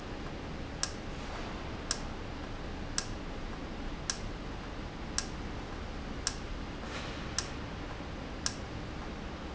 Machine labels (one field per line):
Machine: valve